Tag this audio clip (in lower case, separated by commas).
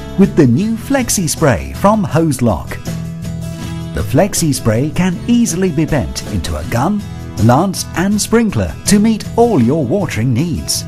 speech, music